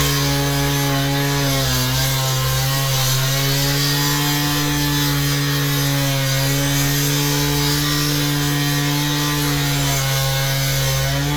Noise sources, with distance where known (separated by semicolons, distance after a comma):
chainsaw, near